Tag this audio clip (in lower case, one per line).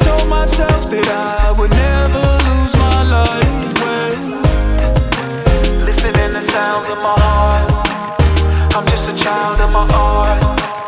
music